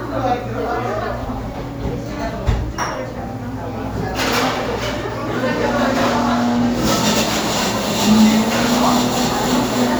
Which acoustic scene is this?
cafe